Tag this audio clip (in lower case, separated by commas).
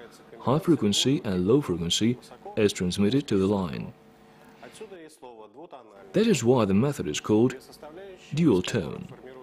speech